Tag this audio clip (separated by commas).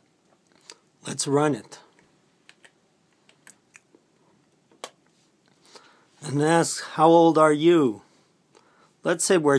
inside a small room, Speech